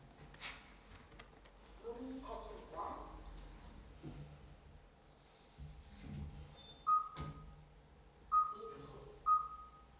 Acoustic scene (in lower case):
elevator